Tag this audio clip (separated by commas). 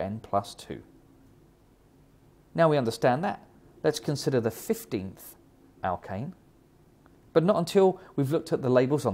Speech